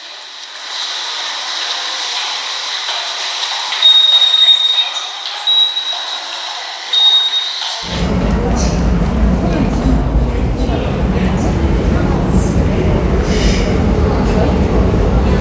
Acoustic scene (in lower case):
subway station